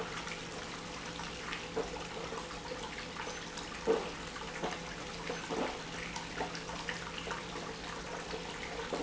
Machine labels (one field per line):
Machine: pump